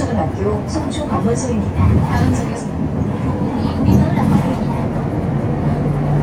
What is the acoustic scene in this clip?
bus